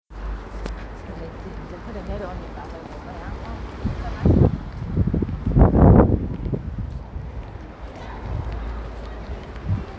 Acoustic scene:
residential area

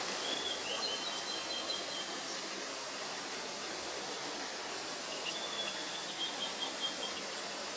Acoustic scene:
park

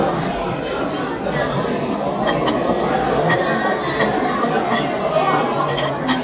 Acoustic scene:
restaurant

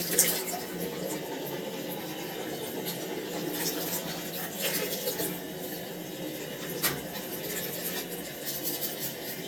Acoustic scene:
restroom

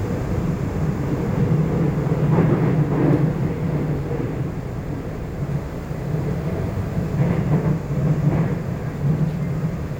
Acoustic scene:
subway train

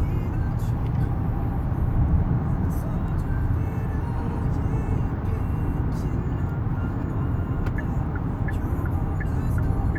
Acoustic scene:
car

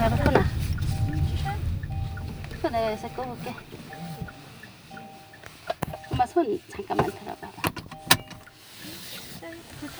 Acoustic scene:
car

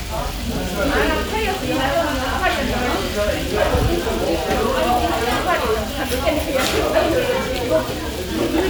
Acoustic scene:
restaurant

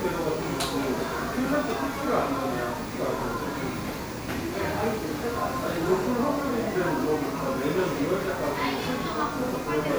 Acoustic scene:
crowded indoor space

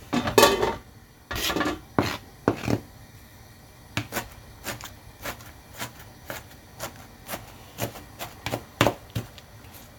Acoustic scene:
kitchen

